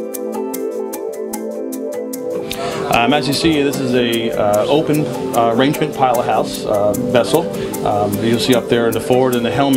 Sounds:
speech
music

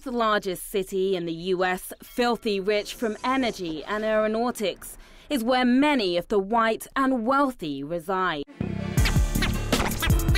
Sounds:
music
speech

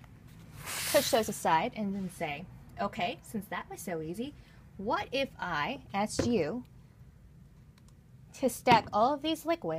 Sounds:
speech

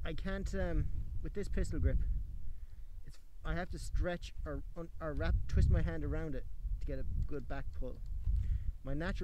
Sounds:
speech

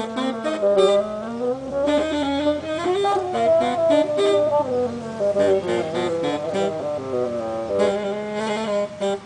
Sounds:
playing bassoon

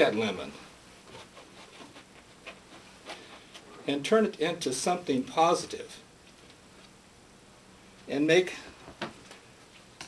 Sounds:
narration
male speech
speech

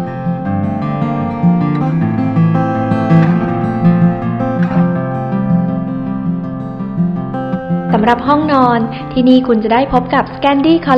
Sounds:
speech
music

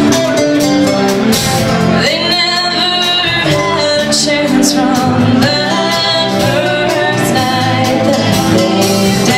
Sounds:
music

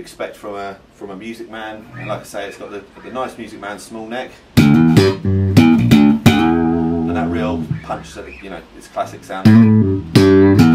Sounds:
speech
bass guitar
musical instrument
strum
plucked string instrument
music
guitar

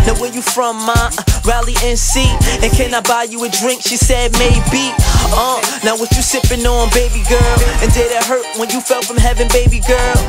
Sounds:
music

